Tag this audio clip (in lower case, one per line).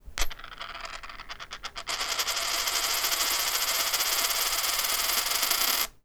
coin (dropping)
home sounds